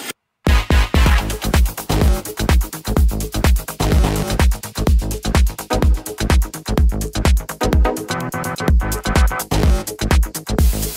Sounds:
Electronica, Music

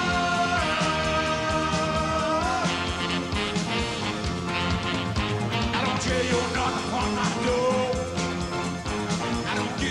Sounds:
Music

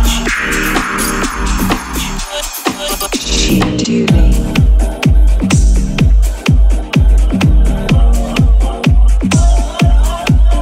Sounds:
Music

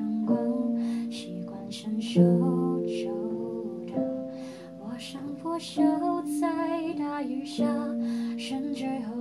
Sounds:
Music

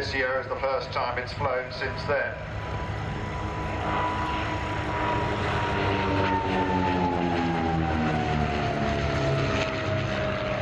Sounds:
Fixed-wing aircraft, Speech, Vehicle, Propeller, Aircraft

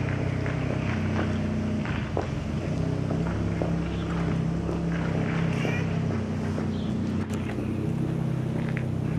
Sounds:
Boat

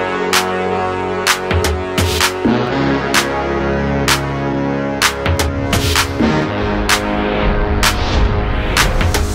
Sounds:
Music

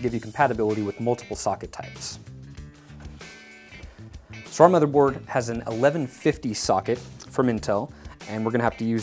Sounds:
Speech, Music

